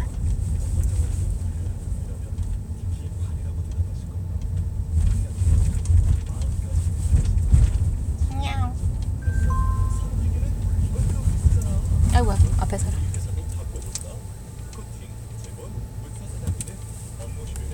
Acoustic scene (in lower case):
car